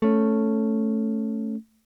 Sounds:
Guitar, Musical instrument, Plucked string instrument, Electric guitar, Strum, Music

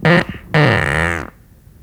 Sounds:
Fart

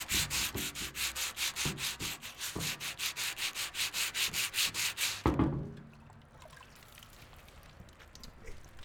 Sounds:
Tools

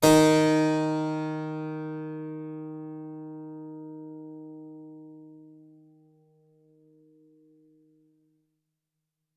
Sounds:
Music, Musical instrument, Keyboard (musical)

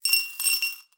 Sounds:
home sounds, Coin (dropping), Glass

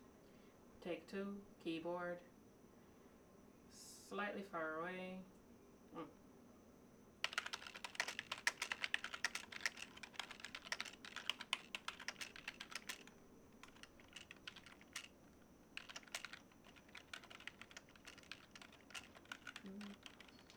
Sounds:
Domestic sounds, Typing

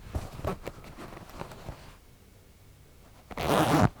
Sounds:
home sounds, Zipper (clothing)

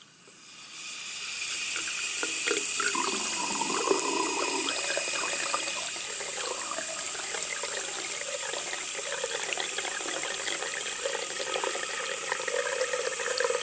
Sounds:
Sink (filling or washing), Water tap, Domestic sounds

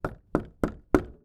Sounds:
Door, home sounds, Knock

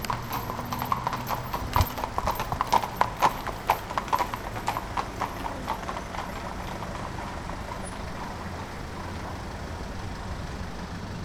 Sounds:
Animal, livestock

